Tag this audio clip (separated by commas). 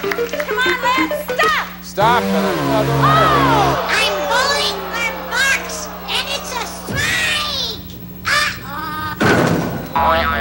people screaming, Screaming